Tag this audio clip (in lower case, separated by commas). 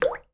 liquid, drip